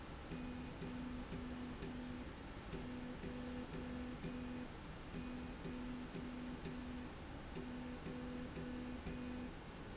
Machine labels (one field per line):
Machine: slide rail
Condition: normal